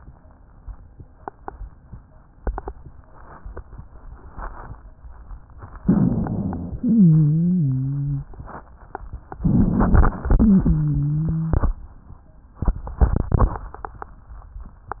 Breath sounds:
5.81-6.81 s: inhalation
5.84-6.83 s: crackles
6.81-8.33 s: wheeze
9.28-10.27 s: crackles
9.32-10.30 s: inhalation
10.42-11.80 s: wheeze

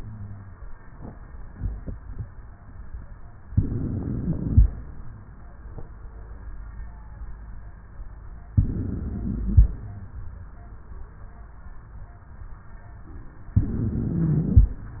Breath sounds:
3.51-4.71 s: inhalation
8.53-9.73 s: inhalation
13.59-14.78 s: inhalation

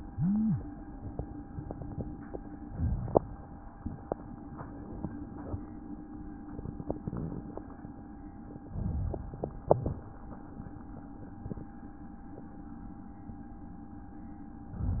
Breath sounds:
2.55-3.37 s: inhalation
8.72-9.67 s: inhalation

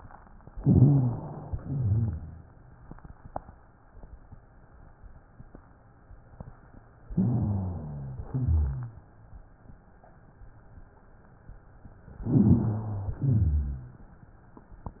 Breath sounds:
0.57-1.54 s: inhalation
0.57-1.54 s: rhonchi
1.57-2.54 s: exhalation
1.57-2.54 s: rhonchi
7.13-8.29 s: inhalation
7.13-8.29 s: rhonchi
8.31-9.03 s: exhalation
12.24-13.26 s: inhalation
12.24-13.26 s: rhonchi
13.26-14.14 s: exhalation
13.30-14.14 s: rhonchi

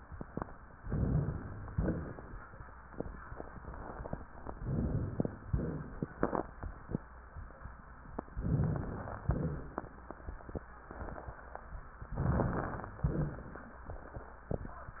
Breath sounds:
0.78-1.70 s: inhalation
1.70-2.69 s: exhalation
1.70-2.69 s: crackles
4.49-5.47 s: inhalation
4.50-5.48 s: crackles
5.47-6.95 s: exhalation
5.51-6.97 s: crackles
8.32-9.24 s: inhalation
8.32-9.24 s: crackles
9.26-10.68 s: exhalation
9.26-10.68 s: crackles
12.14-12.94 s: inhalation
12.14-12.94 s: crackles
13.03-13.84 s: exhalation
13.03-13.84 s: crackles

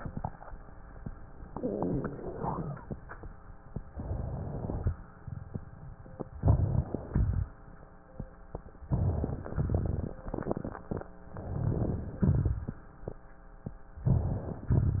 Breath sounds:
3.90-4.87 s: inhalation
6.32-7.02 s: inhalation
7.02-7.52 s: exhalation
8.80-9.55 s: inhalation
9.55-11.01 s: exhalation
9.55-11.01 s: crackles
11.40-12.16 s: inhalation
12.21-12.98 s: exhalation
12.21-12.98 s: crackles
13.97-14.68 s: inhalation
14.69-15.00 s: exhalation
14.69-15.00 s: crackles

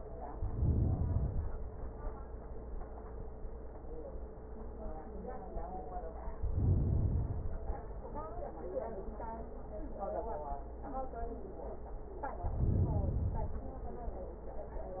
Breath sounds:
0.35-1.45 s: inhalation
6.42-7.72 s: inhalation
12.40-13.70 s: inhalation

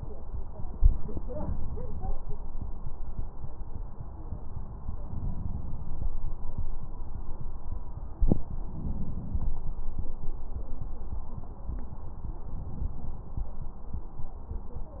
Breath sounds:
1.27-2.13 s: inhalation
5.08-5.93 s: inhalation
8.69-9.54 s: inhalation
8.69-9.54 s: crackles
12.55-13.40 s: inhalation

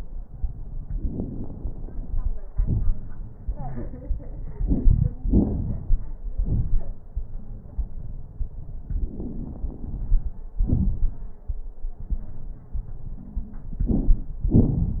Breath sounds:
0.92-2.47 s: inhalation
0.92-2.47 s: crackles
2.48-3.43 s: exhalation
2.48-3.43 s: crackles
3.48-3.89 s: wheeze
8.93-10.62 s: inhalation
8.93-10.62 s: crackles
10.64-11.38 s: exhalation
10.64-11.38 s: crackles
13.78-14.43 s: crackles
13.79-14.47 s: inhalation
14.46-15.00 s: exhalation
14.46-15.00 s: crackles

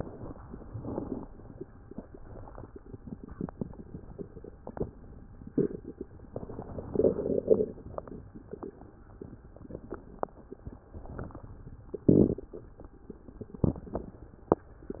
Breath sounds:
0.00-0.68 s: inhalation
0.68-1.29 s: exhalation
6.30-7.31 s: inhalation
10.90-11.54 s: inhalation

